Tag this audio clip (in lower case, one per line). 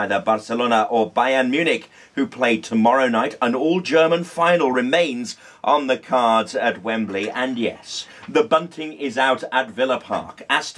speech